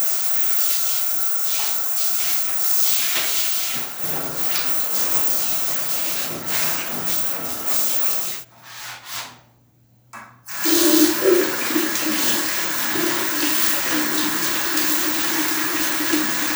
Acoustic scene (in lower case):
restroom